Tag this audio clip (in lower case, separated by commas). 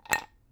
chink, glass